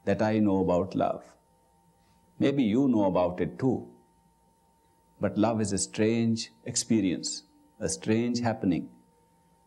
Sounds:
Speech

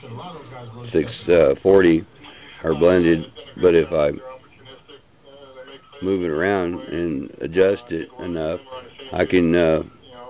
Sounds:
Speech, Radio

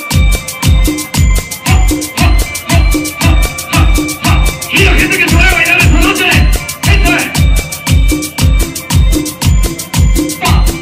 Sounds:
Speech, Music

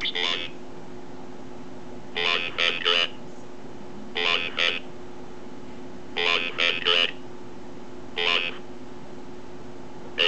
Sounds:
Speech synthesizer

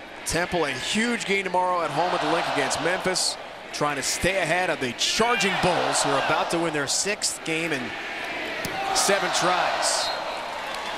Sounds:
Speech

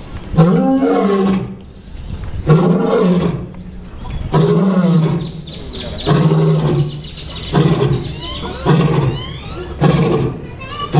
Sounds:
lions roaring

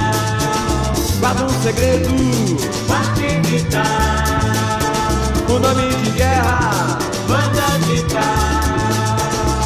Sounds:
Music

